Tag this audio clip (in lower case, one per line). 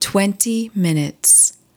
speech
woman speaking
human voice